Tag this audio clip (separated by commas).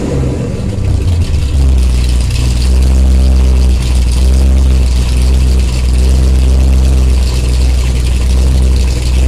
Rattle